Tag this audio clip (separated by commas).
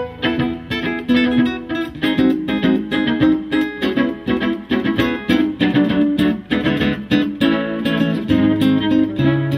Bowed string instrument, Violin